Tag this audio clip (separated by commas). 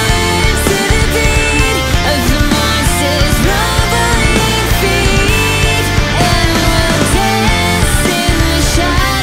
Music